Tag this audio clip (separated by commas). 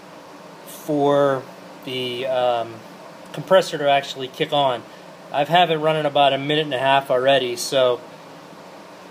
Speech